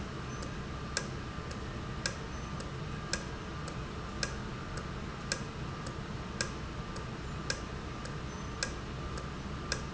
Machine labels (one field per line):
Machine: valve